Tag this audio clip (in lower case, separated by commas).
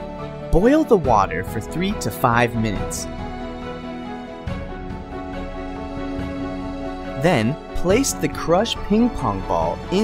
music, speech